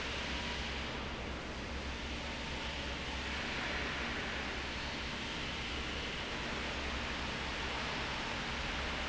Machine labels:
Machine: fan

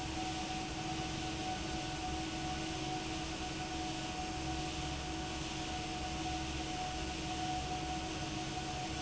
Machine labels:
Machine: fan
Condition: abnormal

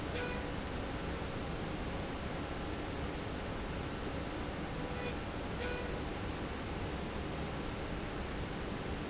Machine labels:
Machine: slide rail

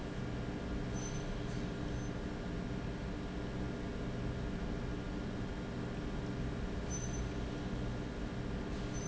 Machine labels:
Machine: pump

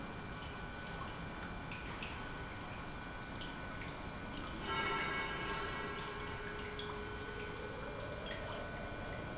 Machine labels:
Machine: pump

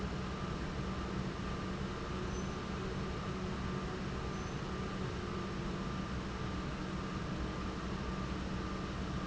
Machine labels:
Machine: pump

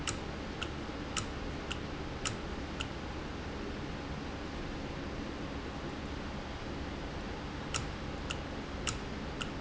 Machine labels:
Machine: valve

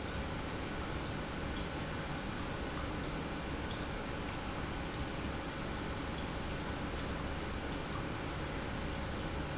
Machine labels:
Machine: pump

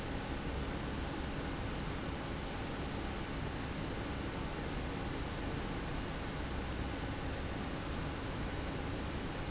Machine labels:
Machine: fan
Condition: normal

